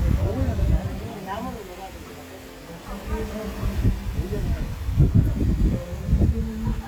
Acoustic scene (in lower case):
park